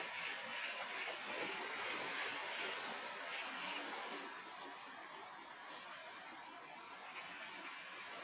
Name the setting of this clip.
residential area